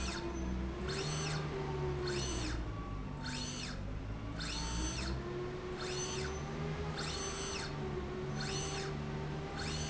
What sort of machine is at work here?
slide rail